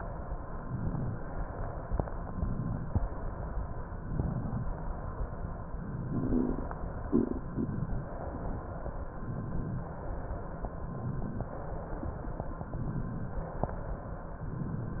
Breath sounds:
Inhalation: 0.42-1.22 s, 2.14-2.94 s, 3.84-4.64 s, 5.87-6.67 s, 7.37-8.17 s, 9.07-9.87 s, 10.69-11.49 s, 12.70-13.49 s, 14.40-15.00 s

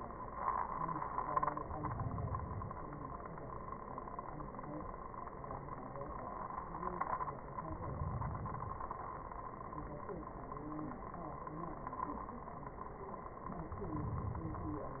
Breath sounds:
Inhalation: 1.50-3.00 s, 7.59-9.09 s, 13.58-15.00 s

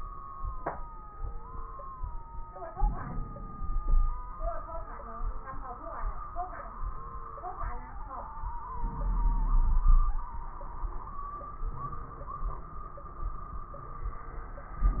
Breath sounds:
Inhalation: 2.69-4.33 s, 8.71-10.32 s
Wheeze: 3.81-4.33 s, 9.85-10.32 s

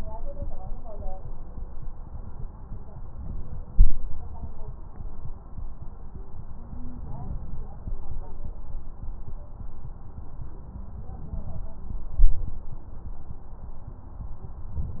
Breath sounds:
Stridor: 6.65-7.01 s

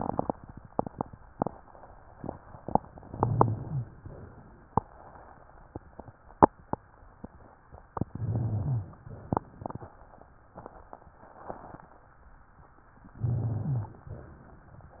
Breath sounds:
Inhalation: 3.13-3.91 s, 8.10-9.03 s, 13.21-14.14 s
Exhalation: 4.02-4.80 s, 9.07-9.94 s, 14.12-14.99 s
Rhonchi: 3.13-3.91 s, 8.10-9.03 s, 13.21-14.14 s

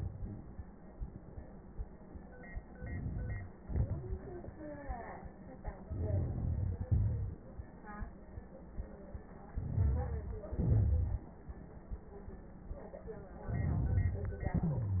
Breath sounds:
Inhalation: 2.54-3.65 s, 5.81-6.88 s, 9.48-10.53 s, 13.32-14.46 s
Exhalation: 3.67-5.79 s, 6.90-8.21 s, 10.54-12.08 s, 14.44-15.00 s
Wheeze: 3.67-4.31 s, 14.44-15.00 s
Crackles: 2.54-3.65 s, 5.83-6.88 s, 9.48-10.53 s, 10.54-12.08 s, 13.32-14.46 s

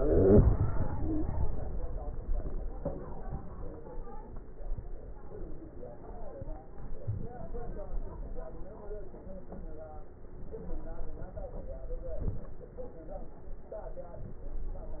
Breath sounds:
Inhalation: 12.03-12.61 s

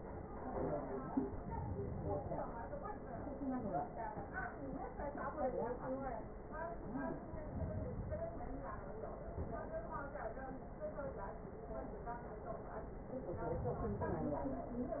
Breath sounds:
Inhalation: 1.26-2.62 s, 7.22-8.58 s, 13.38-14.74 s

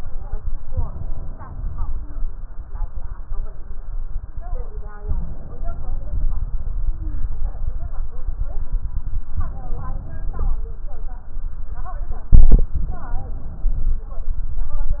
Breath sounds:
Inhalation: 0.61-2.11 s, 5.07-6.35 s, 9.33-10.62 s, 12.79-14.08 s
Stridor: 6.75-7.33 s

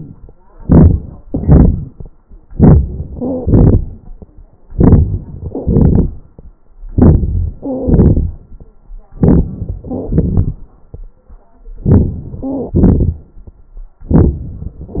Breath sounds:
Stridor: 5.44-5.71 s

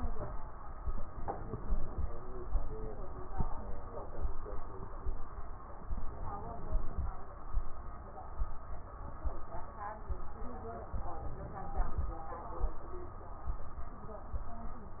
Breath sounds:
Inhalation: 5.91-7.08 s, 10.94-12.11 s

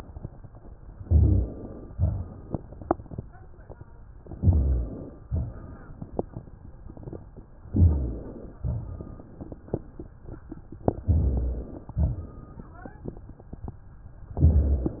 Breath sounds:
Inhalation: 0.95-1.95 s, 4.29-5.27 s, 7.67-8.62 s, 10.97-11.92 s
Exhalation: 1.96-3.33 s, 5.29-6.48 s, 8.65-9.94 s, 11.95-13.21 s

